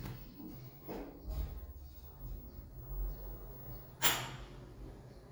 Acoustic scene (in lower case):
elevator